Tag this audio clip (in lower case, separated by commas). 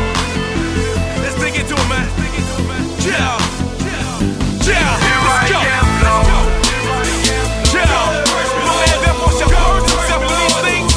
singing, music